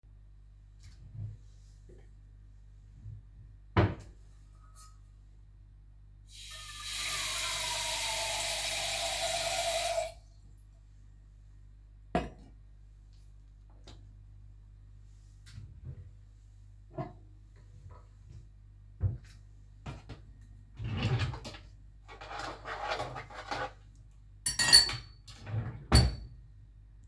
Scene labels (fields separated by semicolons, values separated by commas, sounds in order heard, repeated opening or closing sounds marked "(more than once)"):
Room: kitchen; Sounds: wardrobe or drawer (more than once), running water, cutlery and dishes